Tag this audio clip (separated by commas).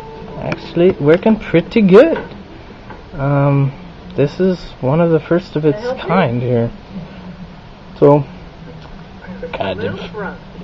Speech